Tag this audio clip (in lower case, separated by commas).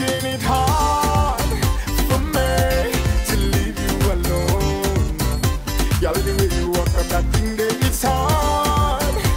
music, independent music